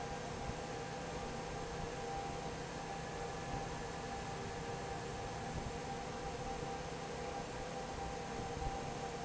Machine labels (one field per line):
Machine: fan